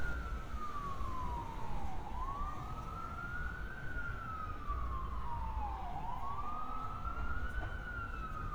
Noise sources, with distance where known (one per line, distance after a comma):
siren